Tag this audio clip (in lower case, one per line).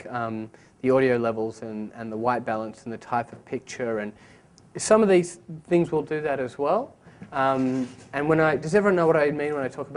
speech